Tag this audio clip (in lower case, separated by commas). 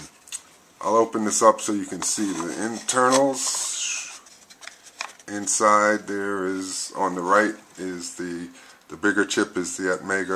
speech